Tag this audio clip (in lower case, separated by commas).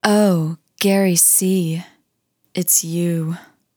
speech, woman speaking, human voice